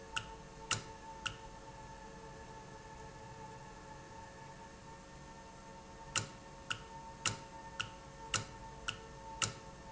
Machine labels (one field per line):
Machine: valve